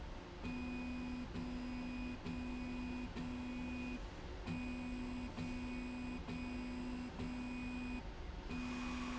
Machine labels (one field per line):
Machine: slide rail